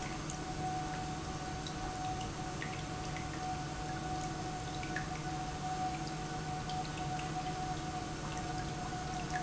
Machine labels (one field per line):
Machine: pump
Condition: normal